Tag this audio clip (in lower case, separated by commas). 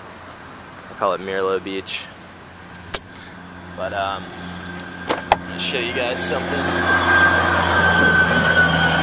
vehicle, speech